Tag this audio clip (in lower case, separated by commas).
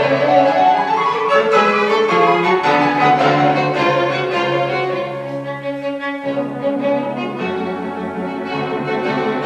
music, violin, musical instrument